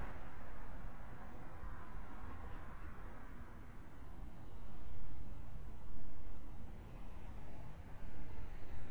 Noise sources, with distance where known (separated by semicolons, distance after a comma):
background noise